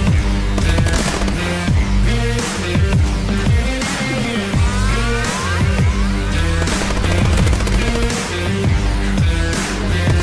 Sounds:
music

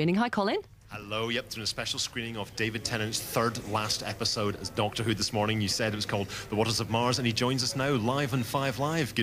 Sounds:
radio, speech

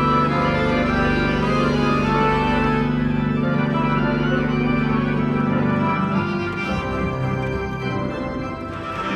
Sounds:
playing electronic organ

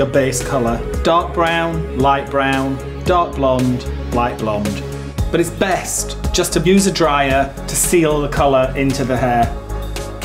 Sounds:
music, speech

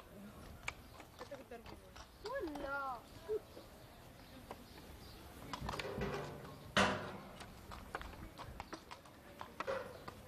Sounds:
clip-clop, animal, horse, speech

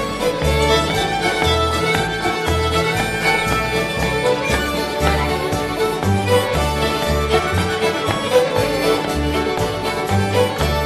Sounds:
music

